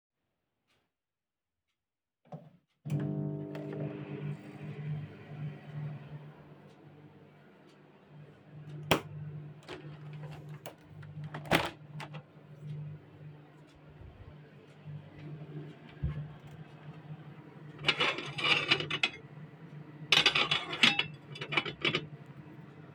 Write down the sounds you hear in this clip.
microwave, window, light switch, cutlery and dishes